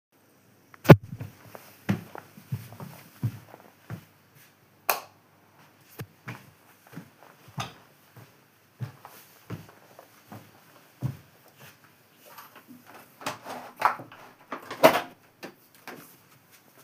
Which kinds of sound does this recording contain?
footsteps, light switch, window